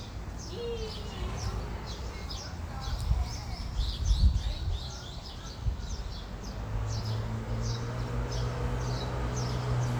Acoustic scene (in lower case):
residential area